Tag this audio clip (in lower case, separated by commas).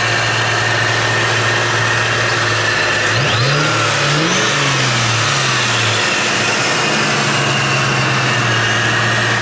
engine, idling, car, vehicle